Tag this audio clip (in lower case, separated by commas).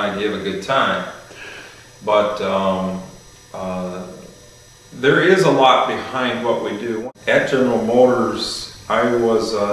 inside a small room, speech